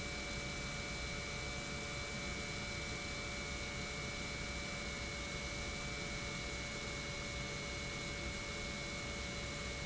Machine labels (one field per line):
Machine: pump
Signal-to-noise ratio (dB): 0 dB